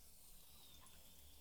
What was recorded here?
water tap